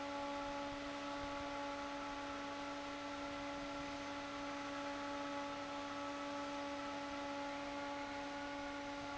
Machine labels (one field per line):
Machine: fan